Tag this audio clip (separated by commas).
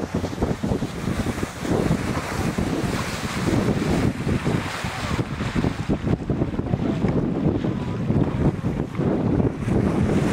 Vehicle, Water vehicle